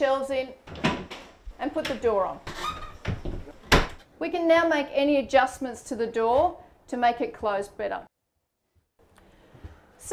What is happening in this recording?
Door shutting closed and parts being moved while woman is talking